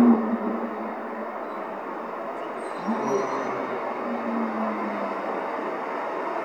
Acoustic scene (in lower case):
street